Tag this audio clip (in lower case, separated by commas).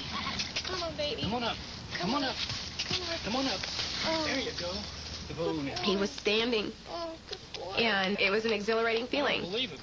animal, outside, rural or natural, horse, speech